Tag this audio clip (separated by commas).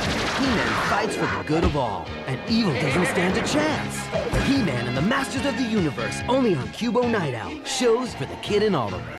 Music, Speech